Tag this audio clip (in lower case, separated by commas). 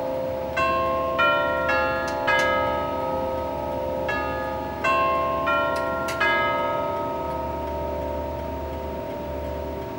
church bell ringing, church bell